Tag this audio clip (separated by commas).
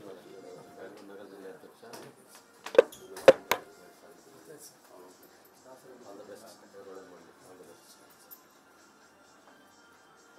inside a small room, Speech, Music